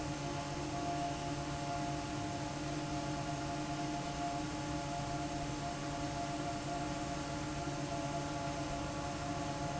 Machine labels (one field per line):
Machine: fan